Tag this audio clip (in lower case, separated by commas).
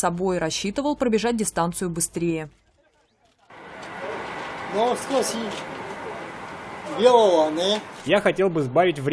outside, urban or man-made, speech